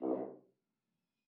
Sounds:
brass instrument
music
musical instrument

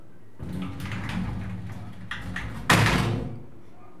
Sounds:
slam
sliding door
door
domestic sounds

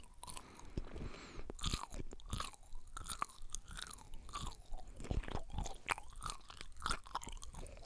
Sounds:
mastication

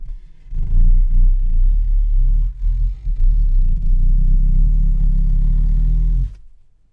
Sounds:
growling
animal

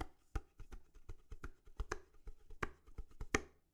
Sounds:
home sounds
dishes, pots and pans

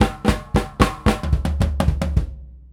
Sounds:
drum kit
musical instrument
percussion
music

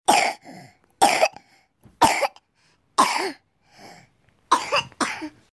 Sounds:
respiratory sounds
cough

